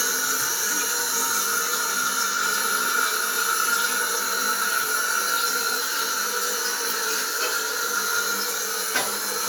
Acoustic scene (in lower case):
restroom